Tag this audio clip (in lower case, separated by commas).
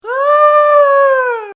human voice, screaming